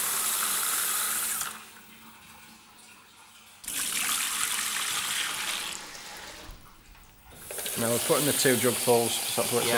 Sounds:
faucet
water

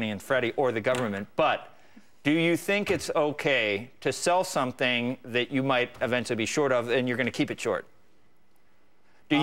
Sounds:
speech

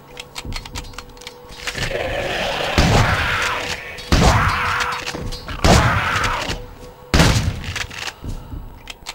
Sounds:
thud

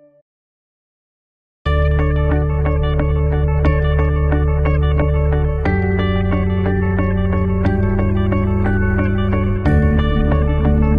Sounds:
music

